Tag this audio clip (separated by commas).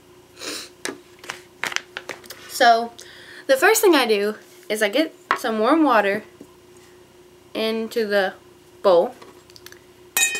Speech